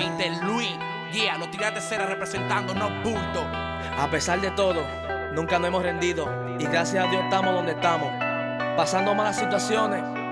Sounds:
music, speech

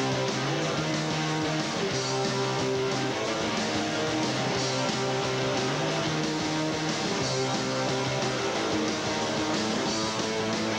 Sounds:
music, pop music

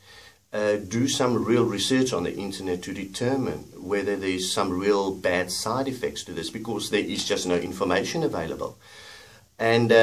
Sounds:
speech

